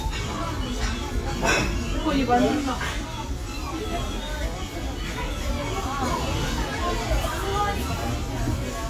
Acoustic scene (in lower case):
restaurant